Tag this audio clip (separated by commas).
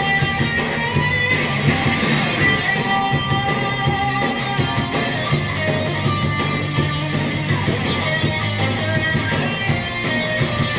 Music, Plucked string instrument, Guitar, Electric guitar, Musical instrument, Strum